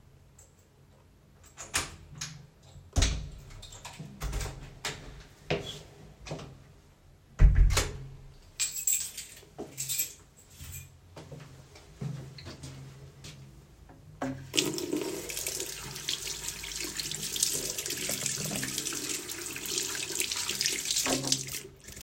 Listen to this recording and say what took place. I opened the door, put down my keychain, walked to the bathroom sink and washed my hands using soap from the dispenser.